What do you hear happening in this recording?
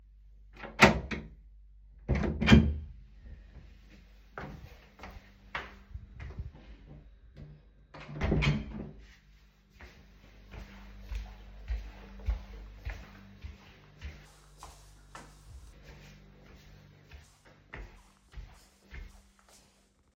I opened the bathroom door and walked out. Then I closed the bathroom door and walked to my room.